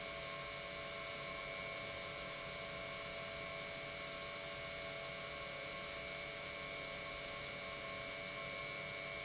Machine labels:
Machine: pump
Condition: normal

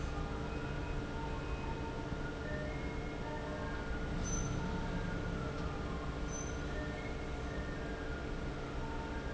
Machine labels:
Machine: fan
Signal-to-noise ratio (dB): -6 dB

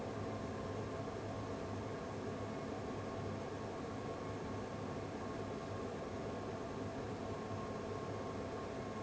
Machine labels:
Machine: fan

